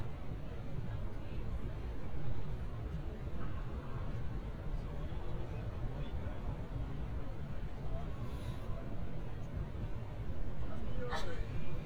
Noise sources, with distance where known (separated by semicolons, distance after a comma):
person or small group talking, far